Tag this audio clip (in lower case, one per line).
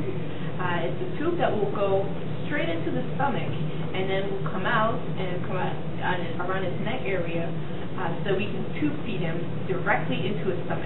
speech